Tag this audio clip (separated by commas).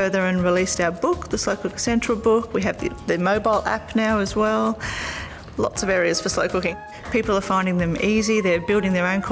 Music, Speech